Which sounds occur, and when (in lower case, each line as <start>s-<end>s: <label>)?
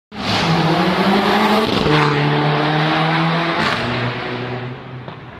0.1s-5.3s: car
1.6s-2.2s: revving
3.6s-4.0s: revving